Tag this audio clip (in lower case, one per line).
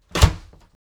door
slam
domestic sounds